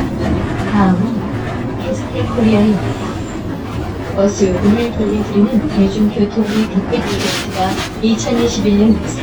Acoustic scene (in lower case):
bus